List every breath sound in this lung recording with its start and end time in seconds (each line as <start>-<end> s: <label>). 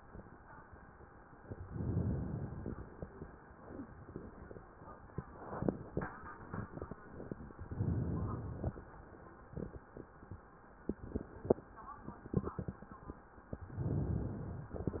1.58-3.16 s: inhalation
7.67-8.92 s: inhalation
13.60-14.74 s: inhalation